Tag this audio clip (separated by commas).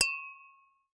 Glass